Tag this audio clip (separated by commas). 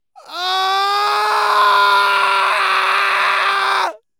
Human voice, Screaming